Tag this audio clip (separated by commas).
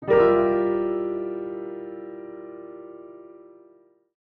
Music, Keyboard (musical), Piano, Musical instrument